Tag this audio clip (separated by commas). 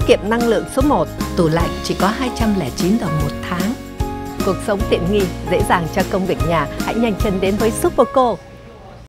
Music, Speech